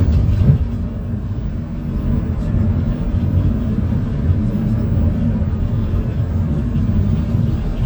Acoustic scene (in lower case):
bus